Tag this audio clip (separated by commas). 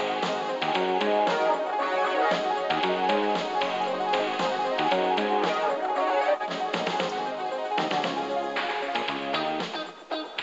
Music